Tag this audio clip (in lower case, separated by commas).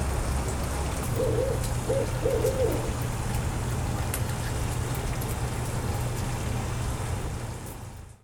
rain, bird, animal, wild animals, water